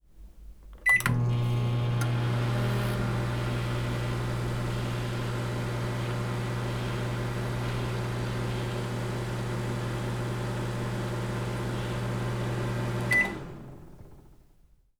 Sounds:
Microwave oven, home sounds

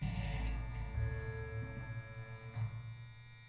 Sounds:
Domestic sounds

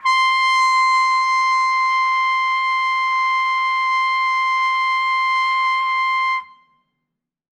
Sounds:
Musical instrument, Trumpet, Music, Brass instrument

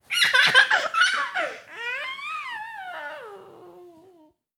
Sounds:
Laughter, Human voice

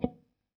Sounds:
Musical instrument, Guitar, Plucked string instrument, Music

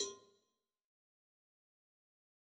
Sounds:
Cowbell, Bell

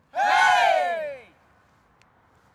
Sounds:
Human group actions, Cheering

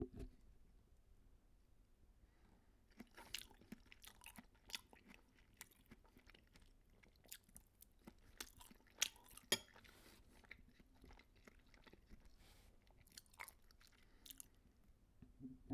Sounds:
mastication

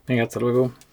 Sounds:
Human voice, Speech, man speaking

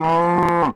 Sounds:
livestock, Animal

